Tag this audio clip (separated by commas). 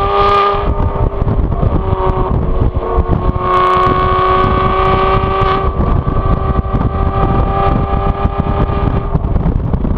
Flap, Crackle